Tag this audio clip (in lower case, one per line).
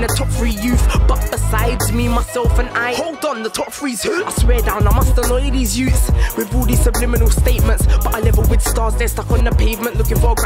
music